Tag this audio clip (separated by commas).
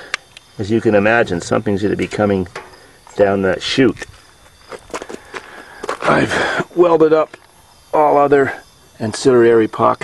Speech